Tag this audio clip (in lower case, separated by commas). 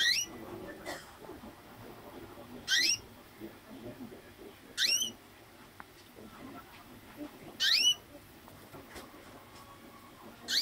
canary calling